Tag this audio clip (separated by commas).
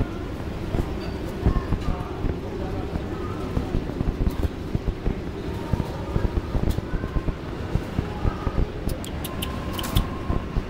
Speech